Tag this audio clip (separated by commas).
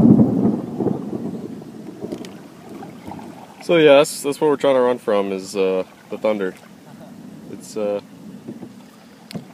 Thunderstorm, Boat, kayak, Speech, Vehicle